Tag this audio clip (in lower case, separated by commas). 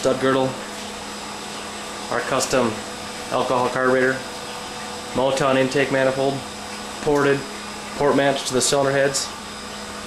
engine, idling, medium engine (mid frequency), speech